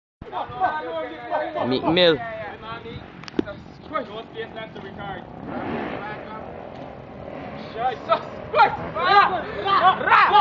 Multiple voices speak with a vehicle in the background